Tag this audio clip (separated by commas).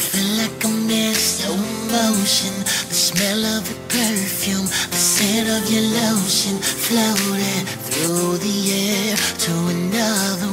Rhythm and blues